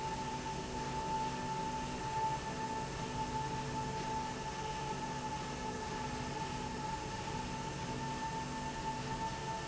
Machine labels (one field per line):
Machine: slide rail